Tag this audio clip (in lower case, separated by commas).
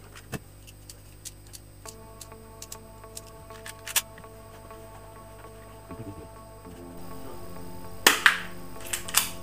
cap gun shooting